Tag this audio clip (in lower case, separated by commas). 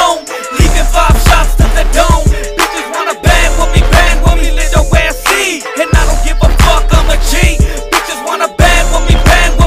music